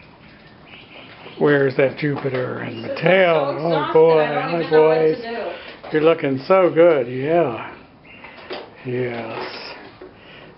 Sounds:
animal, speech

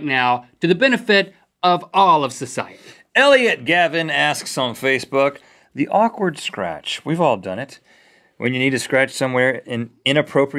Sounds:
speech

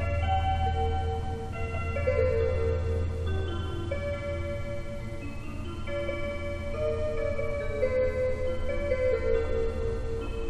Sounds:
music

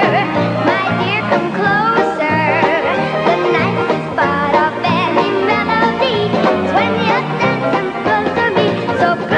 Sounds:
music

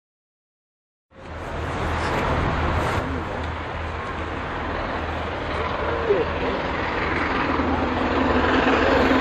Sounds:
railroad car, train, inside a public space, vehicle, rail transport, speech

